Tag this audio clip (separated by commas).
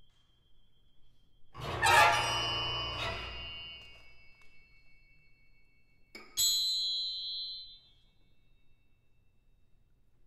Bowed string instrument, Percussion, Musical instrument, Music